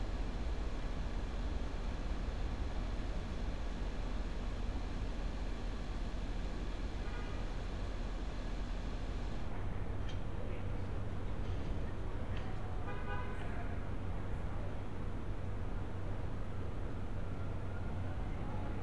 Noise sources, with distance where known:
car horn, far

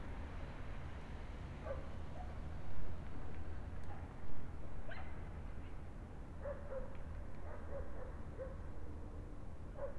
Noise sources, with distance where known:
dog barking or whining, far

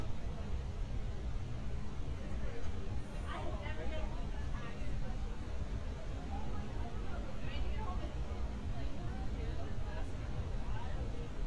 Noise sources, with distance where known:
person or small group talking, near

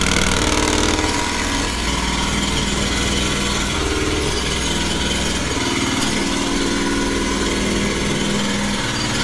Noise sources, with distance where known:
jackhammer, near

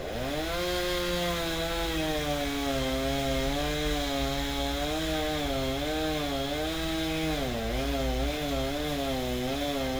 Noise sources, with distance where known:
chainsaw, near

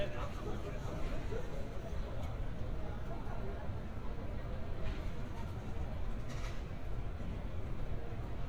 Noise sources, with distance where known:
person or small group talking

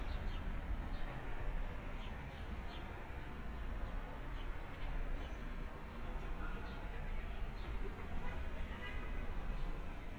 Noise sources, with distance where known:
car horn, far

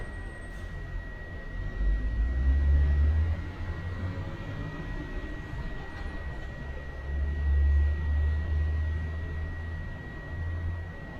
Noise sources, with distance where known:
large-sounding engine, far

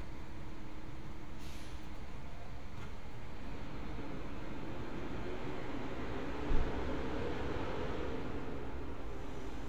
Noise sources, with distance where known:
large-sounding engine, far

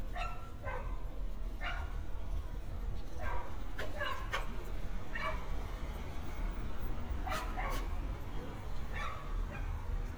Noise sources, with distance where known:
dog barking or whining, near

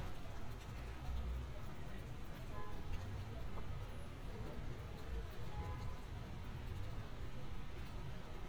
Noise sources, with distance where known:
car horn, far

